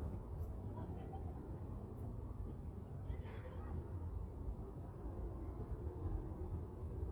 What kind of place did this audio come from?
residential area